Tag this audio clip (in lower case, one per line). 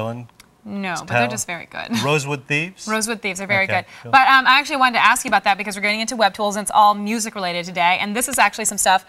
speech